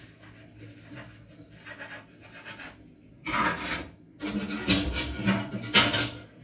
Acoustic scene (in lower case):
kitchen